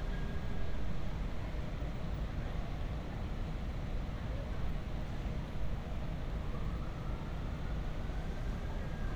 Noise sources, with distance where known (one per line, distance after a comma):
siren, far